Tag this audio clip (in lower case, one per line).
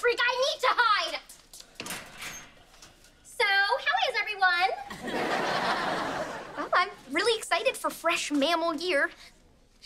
speech